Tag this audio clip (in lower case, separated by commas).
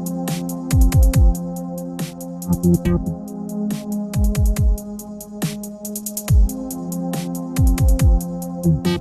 dubstep, electronic music, music